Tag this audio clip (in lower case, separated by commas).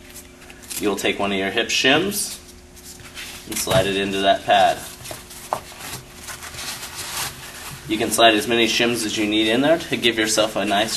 speech